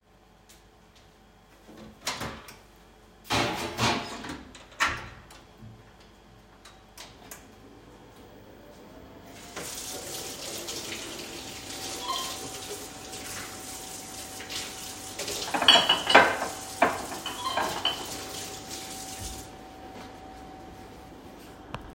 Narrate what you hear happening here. I opened the microwave and turned it on. While waiting, I turned on the sink and washed some dishes. During this time, I also received a message on my phone.